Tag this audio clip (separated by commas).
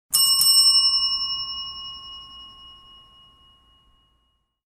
Bell